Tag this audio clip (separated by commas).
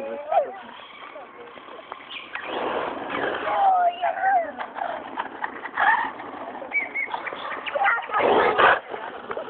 Speech